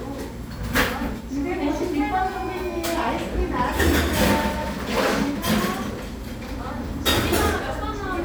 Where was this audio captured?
in a cafe